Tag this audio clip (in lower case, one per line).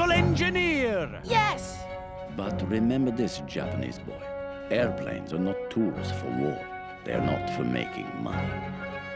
speech
music